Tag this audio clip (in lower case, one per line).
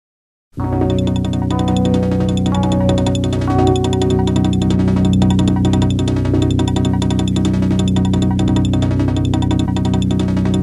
music